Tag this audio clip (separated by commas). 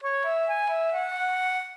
Wind instrument, Musical instrument, Music